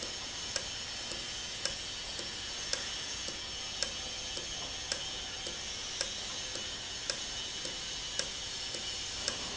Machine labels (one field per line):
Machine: valve